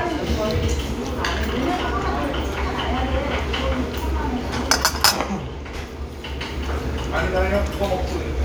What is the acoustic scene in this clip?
restaurant